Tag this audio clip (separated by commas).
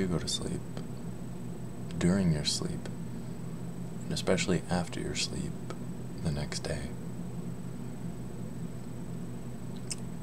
Speech